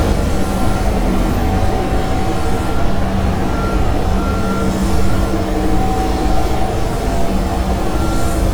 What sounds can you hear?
large-sounding engine, reverse beeper